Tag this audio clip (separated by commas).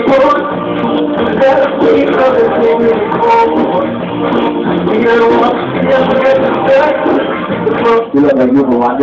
Speech, Music